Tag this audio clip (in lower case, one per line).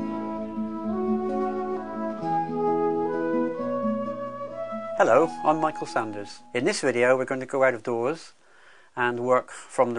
speech
music